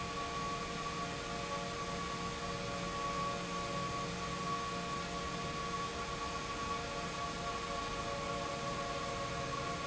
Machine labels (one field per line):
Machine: pump